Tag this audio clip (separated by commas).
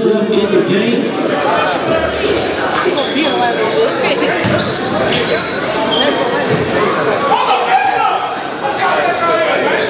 Speech